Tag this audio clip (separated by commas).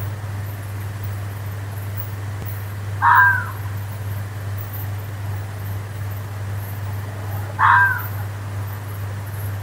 fox barking